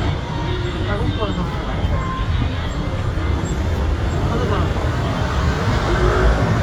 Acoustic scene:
street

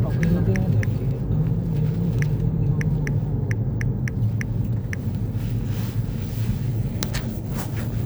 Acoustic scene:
car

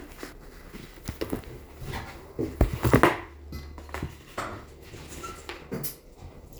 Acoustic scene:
elevator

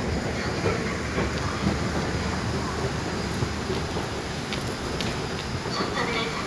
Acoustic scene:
subway station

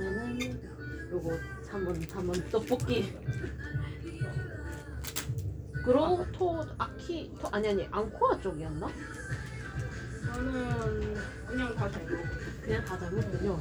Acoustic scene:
cafe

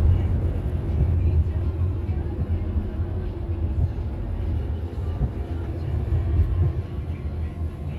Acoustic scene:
car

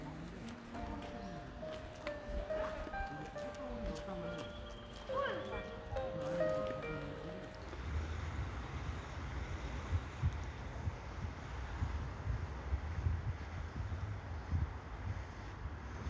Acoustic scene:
park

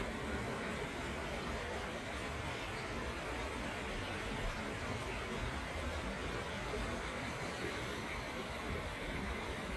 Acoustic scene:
park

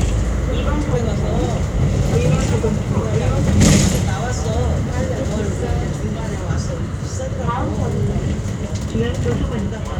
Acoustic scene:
bus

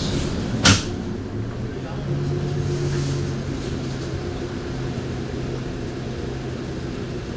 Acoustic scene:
bus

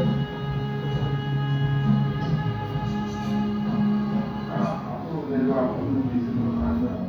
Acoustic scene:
cafe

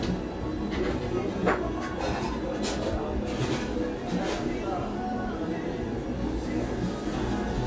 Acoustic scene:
cafe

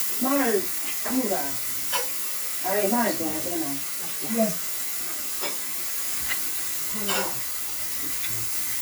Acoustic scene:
restaurant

